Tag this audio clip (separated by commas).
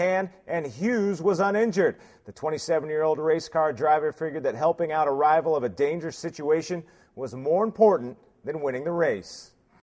Speech